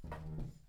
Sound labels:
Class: furniture moving; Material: wooden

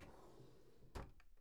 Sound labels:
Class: drawer; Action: opening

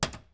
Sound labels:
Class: cupboard; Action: closing; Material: wooden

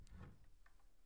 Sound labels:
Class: cupboard; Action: opening; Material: wooden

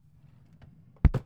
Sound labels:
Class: drawer; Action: opening; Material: wooden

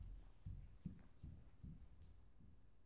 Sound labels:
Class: footsteps; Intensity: medium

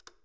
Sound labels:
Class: switch; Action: being turned off; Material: plastic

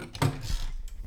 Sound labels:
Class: cupboard; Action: opening; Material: wooden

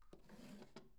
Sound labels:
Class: drawer; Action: opening; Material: wooden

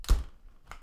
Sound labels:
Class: window; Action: closing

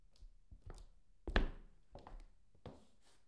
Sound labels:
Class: footsteps; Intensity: low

